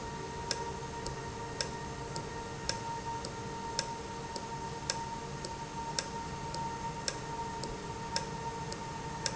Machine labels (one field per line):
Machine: valve